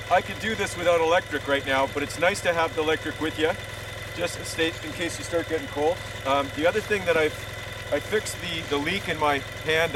A man speaking and an engine running idle